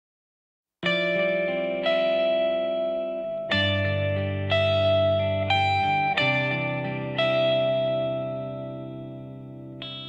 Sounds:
Music

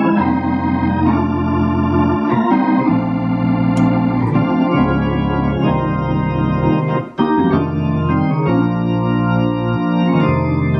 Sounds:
Organ

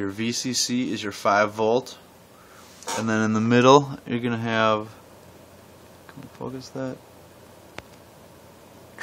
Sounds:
Speech

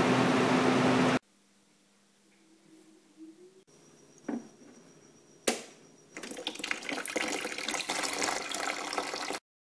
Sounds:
Air conditioning

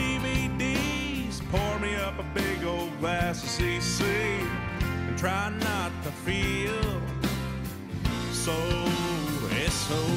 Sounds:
Music

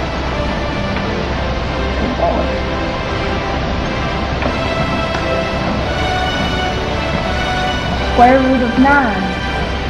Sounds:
Speech, Music

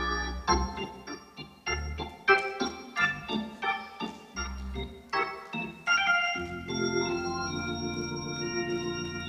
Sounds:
playing hammond organ

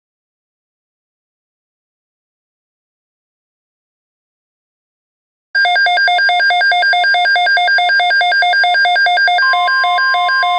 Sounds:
Silence

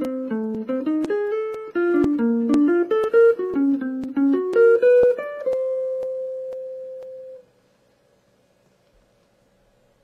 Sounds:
Guitar, Music, inside a small room, Musical instrument, Plucked string instrument, Jazz

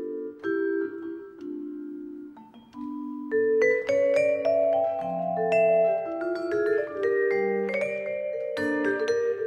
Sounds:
Musical instrument, Music, xylophone

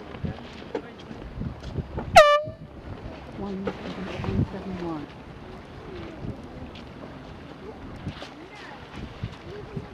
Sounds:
Speech, outside, urban or man-made

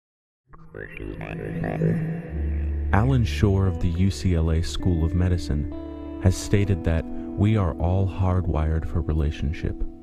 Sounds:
Speech, Music

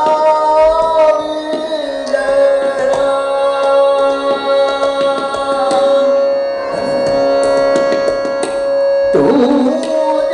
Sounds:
Music, Classical music

